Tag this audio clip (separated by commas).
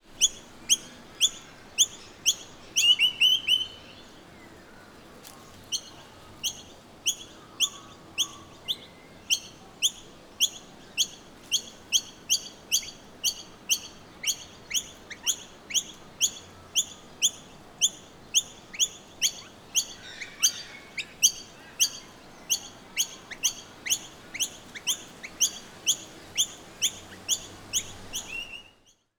Bird, Wild animals, tweet, Animal, bird song